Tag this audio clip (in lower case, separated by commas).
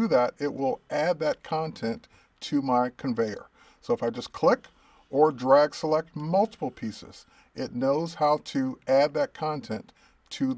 speech